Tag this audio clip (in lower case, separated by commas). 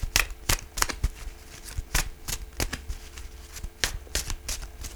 domestic sounds